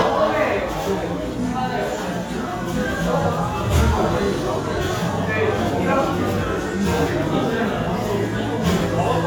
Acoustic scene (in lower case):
restaurant